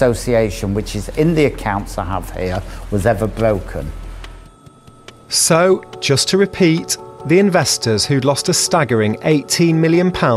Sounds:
Music, Speech

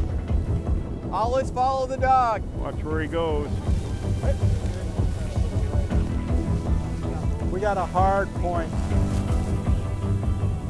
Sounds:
Speech, Music

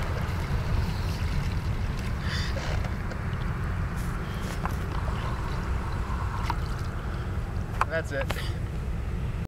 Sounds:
Vehicle, Speech, Boat

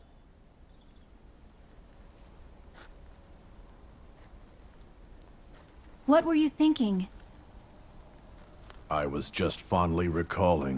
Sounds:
Speech

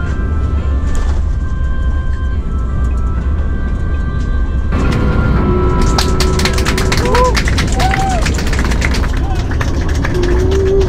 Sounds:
airplane

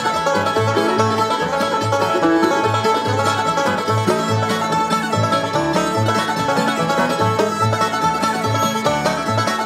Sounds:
Music

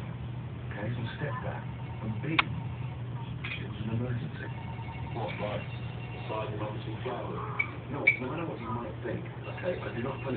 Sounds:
Speech

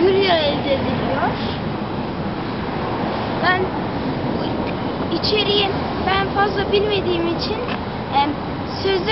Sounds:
Speech

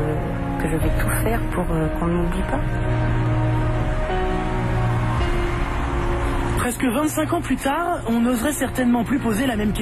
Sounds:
Music, Speech

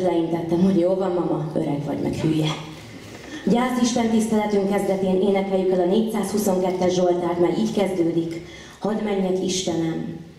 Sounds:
Speech

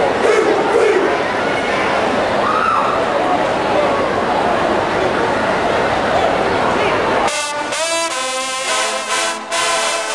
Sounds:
Music, Speech

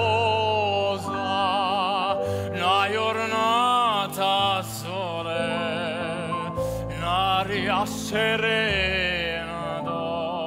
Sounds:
Opera, Music

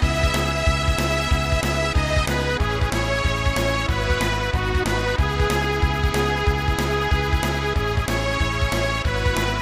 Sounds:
Music, Background music

